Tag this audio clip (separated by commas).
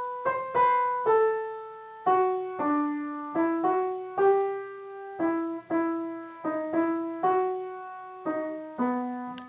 playing glockenspiel